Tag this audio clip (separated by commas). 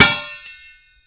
Tools